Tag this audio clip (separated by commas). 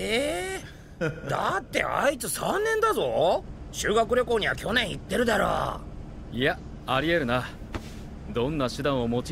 Speech